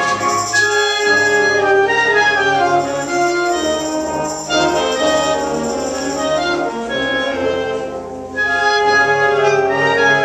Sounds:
Brass instrument, Classical music, Orchestra, Musical instrument, Jazz, Music

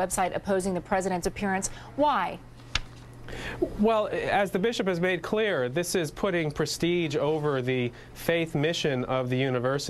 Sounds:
Male speech, Speech, woman speaking, Conversation

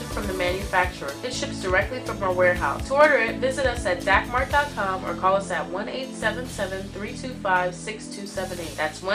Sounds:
Music, Speech

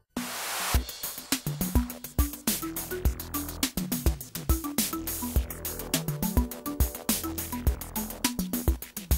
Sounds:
Music

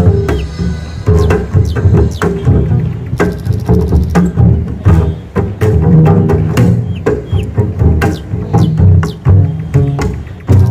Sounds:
playing double bass

